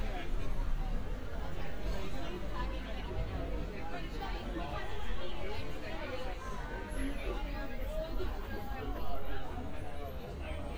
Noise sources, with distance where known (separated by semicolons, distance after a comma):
person or small group talking, near